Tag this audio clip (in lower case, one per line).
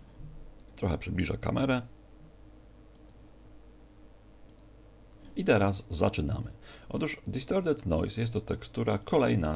speech